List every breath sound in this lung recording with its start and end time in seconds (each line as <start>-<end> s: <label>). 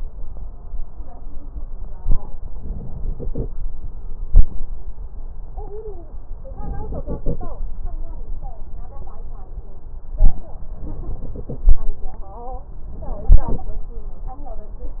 2.50-3.48 s: inhalation
6.51-7.58 s: inhalation
10.77-11.84 s: inhalation